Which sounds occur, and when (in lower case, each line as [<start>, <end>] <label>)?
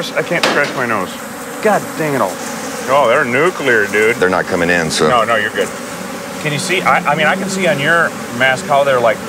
[0.00, 1.21] male speech
[0.00, 9.25] buzz
[0.00, 9.25] conversation
[0.39, 0.72] generic impact sounds
[1.59, 2.33] male speech
[2.82, 5.65] male speech
[3.10, 3.19] tick
[6.39, 8.12] male speech
[8.37, 9.12] male speech